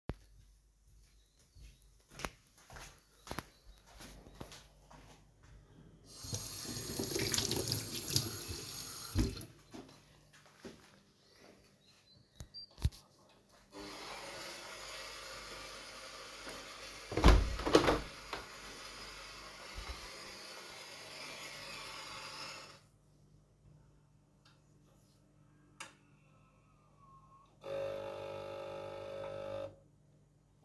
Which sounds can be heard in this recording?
footsteps, running water, coffee machine, window